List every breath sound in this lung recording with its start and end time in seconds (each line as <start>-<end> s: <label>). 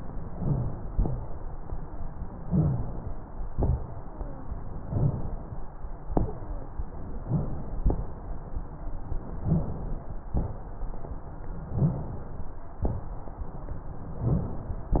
0.30-0.91 s: inhalation
0.38-0.75 s: rhonchi
0.91-2.43 s: exhalation
2.48-2.99 s: rhonchi
2.50-3.47 s: inhalation
3.51-4.86 s: exhalation
3.52-3.85 s: crackles
4.93-5.23 s: rhonchi
6.07-7.23 s: exhalation
7.22-7.55 s: rhonchi
7.23-7.80 s: inhalation
7.80-9.41 s: exhalation
9.41-10.30 s: inhalation
9.42-9.75 s: rhonchi
10.30-11.72 s: exhalation
11.70-12.03 s: rhonchi
11.72-12.83 s: inhalation
12.83-14.21 s: exhalation
14.21-15.00 s: inhalation
14.24-14.57 s: rhonchi